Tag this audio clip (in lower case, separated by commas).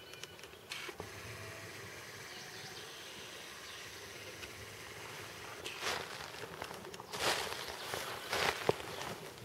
outside, rural or natural